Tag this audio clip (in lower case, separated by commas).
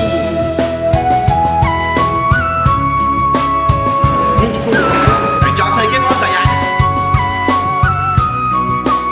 speech, music, inside a large room or hall